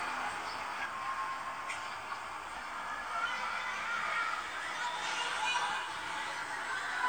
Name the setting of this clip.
residential area